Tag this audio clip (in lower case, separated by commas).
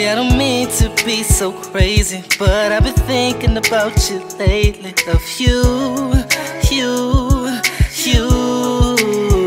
blues, music